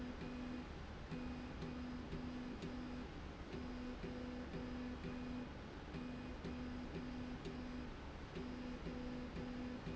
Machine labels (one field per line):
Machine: slide rail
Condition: normal